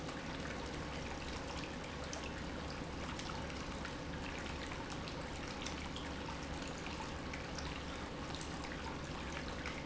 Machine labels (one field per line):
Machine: pump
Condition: normal